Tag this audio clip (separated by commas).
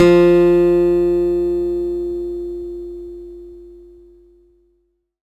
Music, Acoustic guitar, Musical instrument, Plucked string instrument, Guitar